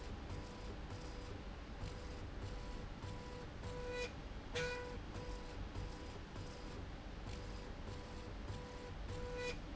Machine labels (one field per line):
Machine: slide rail